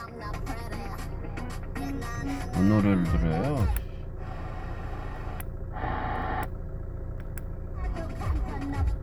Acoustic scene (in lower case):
car